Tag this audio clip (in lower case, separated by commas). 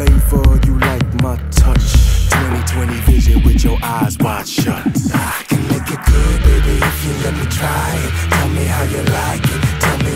ska, music, pop music